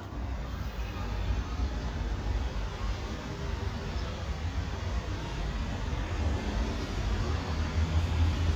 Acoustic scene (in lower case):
residential area